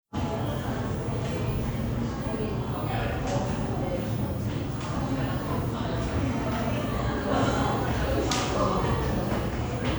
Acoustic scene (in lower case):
crowded indoor space